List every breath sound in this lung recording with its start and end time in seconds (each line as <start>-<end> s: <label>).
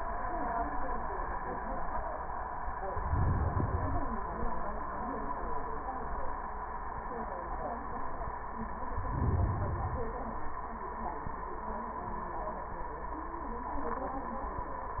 2.90-4.08 s: inhalation
8.84-10.40 s: inhalation